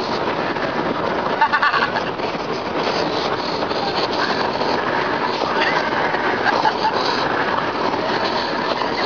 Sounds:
speech

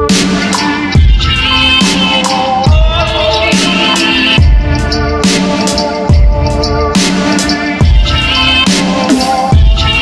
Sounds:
music, dubstep, electronic music

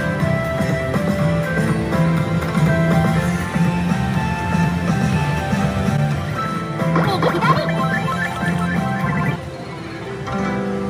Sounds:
slot machine

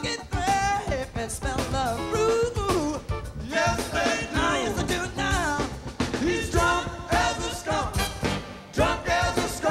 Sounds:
music

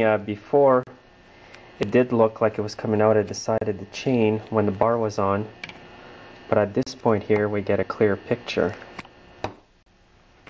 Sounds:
tools, speech

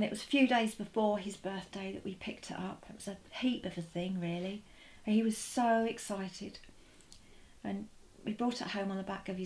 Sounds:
speech

